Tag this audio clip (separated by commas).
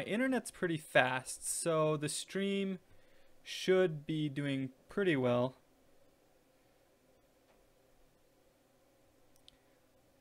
inside a small room, Speech